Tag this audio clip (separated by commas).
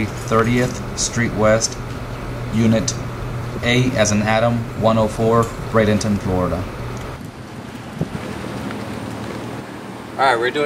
Speech